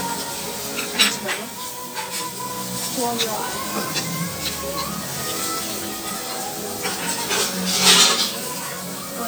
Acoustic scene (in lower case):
restaurant